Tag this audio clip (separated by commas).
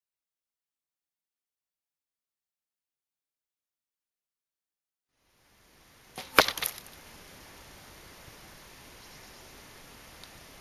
Arrow